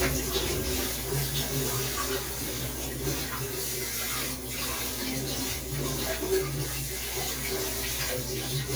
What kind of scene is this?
kitchen